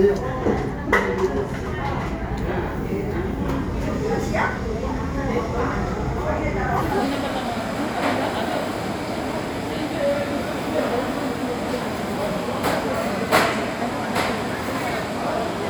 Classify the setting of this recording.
crowded indoor space